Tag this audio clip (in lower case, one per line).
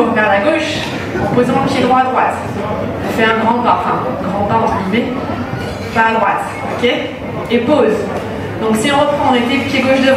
inside a large room or hall
speech